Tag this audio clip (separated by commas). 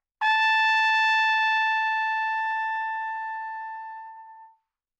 Brass instrument, Musical instrument, Music, Trumpet